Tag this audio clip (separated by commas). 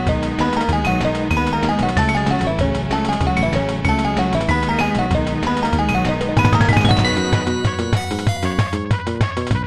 Music